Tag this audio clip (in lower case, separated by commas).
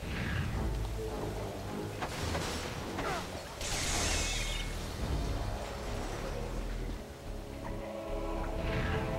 music